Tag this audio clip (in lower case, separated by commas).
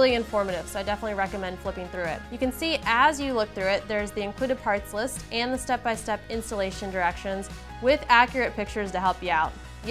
music, speech